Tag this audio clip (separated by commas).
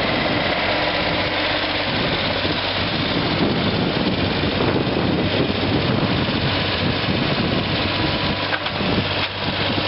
Vehicle